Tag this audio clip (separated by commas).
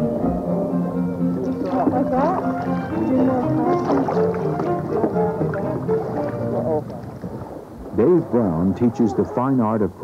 Rowboat, Boat